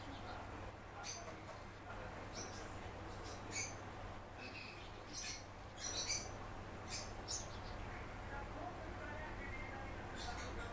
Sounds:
barn swallow calling

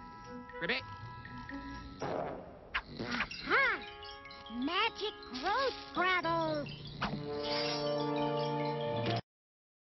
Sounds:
speech, music

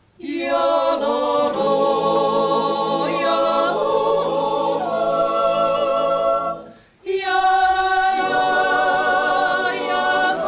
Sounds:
choir, music

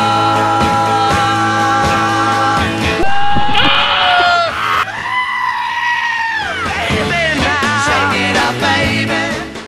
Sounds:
whoop, music, bellow

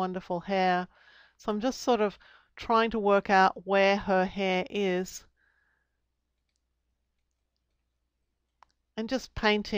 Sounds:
speech, inside a small room

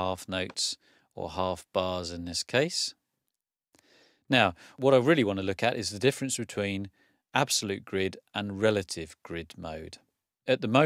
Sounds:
speech

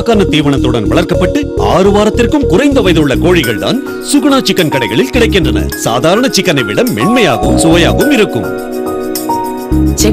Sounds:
speech, music

